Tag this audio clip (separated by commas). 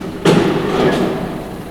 Mechanisms, Engine